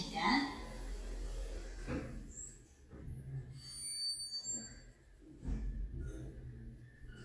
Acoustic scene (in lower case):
elevator